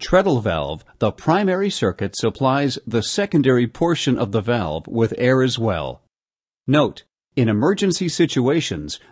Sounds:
Speech

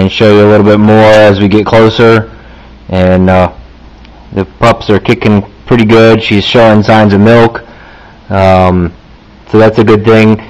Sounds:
Speech

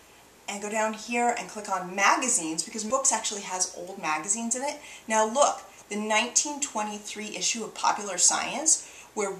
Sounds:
Speech

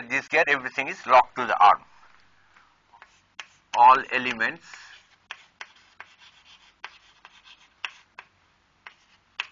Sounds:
Speech

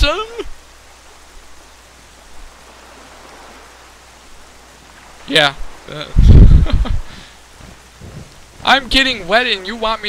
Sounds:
Wind noise (microphone), Speech

